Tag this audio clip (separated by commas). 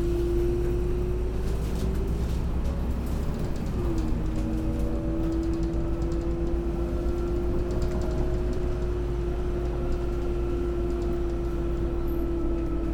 Bus, Vehicle, Motor vehicle (road)